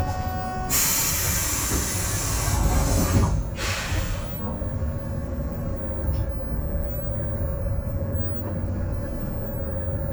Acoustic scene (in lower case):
bus